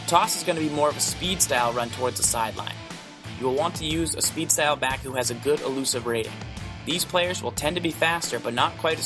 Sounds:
Speech, Music

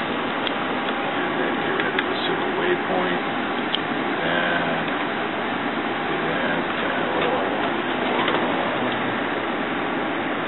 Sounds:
Speech

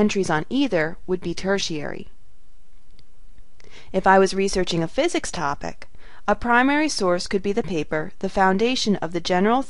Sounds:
Speech

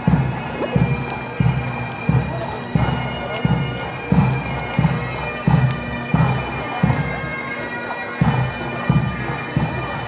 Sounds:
Bagpipes

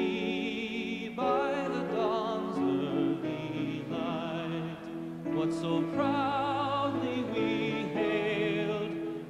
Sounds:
Opera, Music

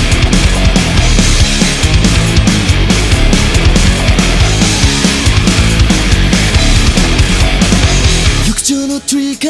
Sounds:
Music

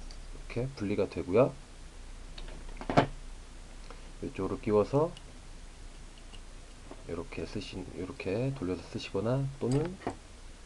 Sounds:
Speech

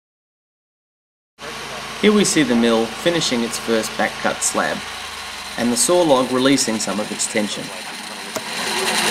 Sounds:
Speech

